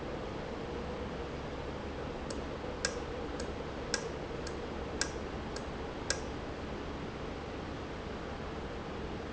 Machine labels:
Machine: valve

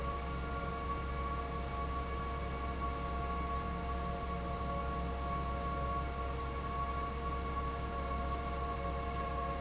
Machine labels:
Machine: fan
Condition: abnormal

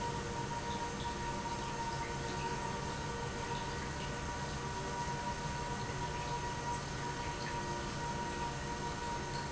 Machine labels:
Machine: pump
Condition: normal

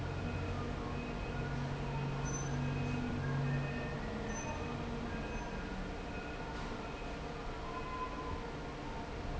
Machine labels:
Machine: fan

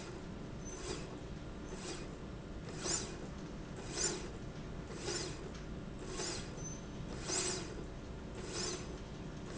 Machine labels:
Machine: slide rail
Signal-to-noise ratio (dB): 0 dB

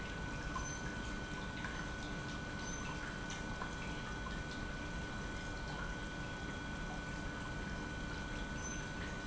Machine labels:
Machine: pump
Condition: normal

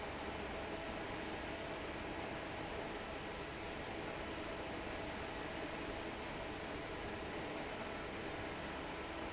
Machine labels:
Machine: fan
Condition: normal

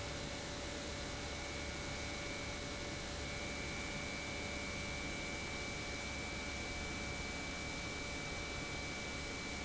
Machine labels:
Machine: pump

